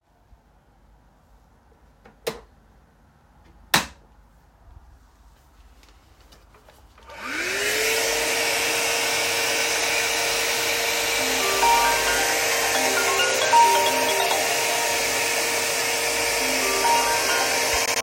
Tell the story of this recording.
I switched on the light, then turned on the vacuum, and got a phone call.